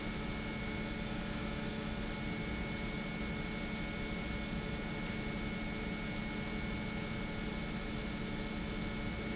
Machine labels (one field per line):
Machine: pump